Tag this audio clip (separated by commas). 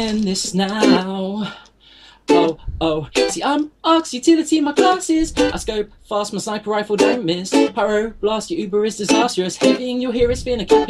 Music